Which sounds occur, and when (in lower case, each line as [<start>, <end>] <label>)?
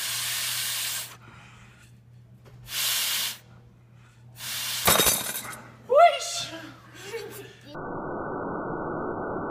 [0.00, 1.89] breathing
[0.00, 7.73] mechanisms
[2.08, 2.24] surface contact
[2.40, 2.53] generic impact sounds
[2.62, 3.57] breathing
[3.92, 4.22] breathing
[4.32, 4.82] breathing
[4.84, 5.55] generic impact sounds
[5.40, 5.81] surface contact
[5.88, 6.77] child speech
[6.52, 7.58] breathing
[6.97, 7.56] laughter
[7.61, 7.74] child speech
[7.72, 9.50] sound effect